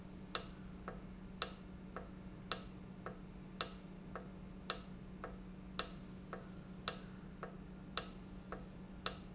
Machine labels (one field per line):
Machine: valve